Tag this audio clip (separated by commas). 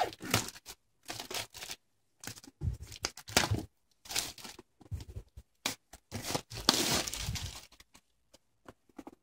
Crumpling, inside a small room